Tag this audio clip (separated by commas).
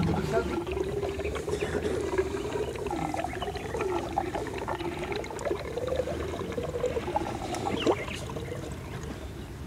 Wild animals, Animal, Speech